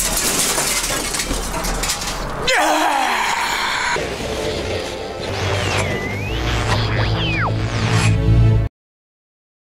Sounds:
television, music

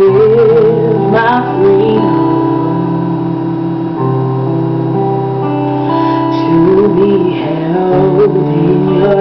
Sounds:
female singing, music

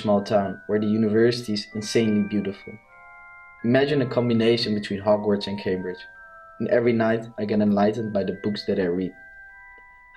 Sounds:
music, inside a large room or hall, speech

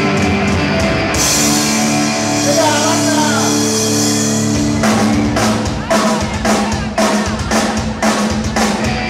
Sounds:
music, speech

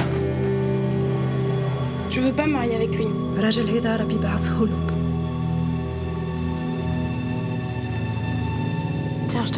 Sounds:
speech, music

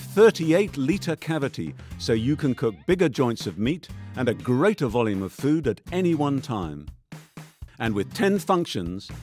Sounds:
music, speech

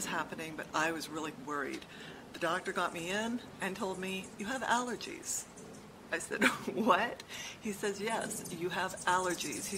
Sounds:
speech

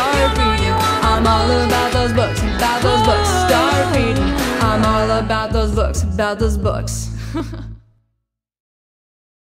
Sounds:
singing

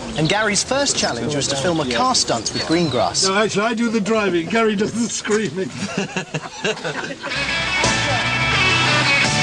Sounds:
speech, music

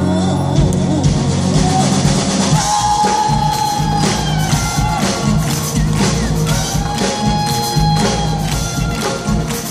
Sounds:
orchestra, music

